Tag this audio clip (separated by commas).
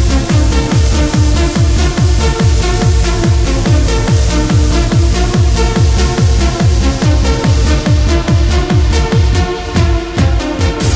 Dance music, Trance music, Electronic music, Music